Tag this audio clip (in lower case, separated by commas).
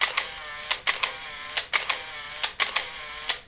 camera, mechanisms